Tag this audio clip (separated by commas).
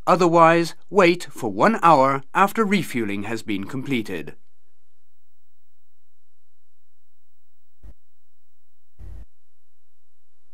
Speech